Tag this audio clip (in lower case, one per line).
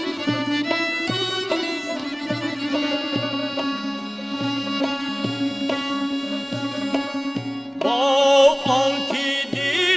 music
traditional music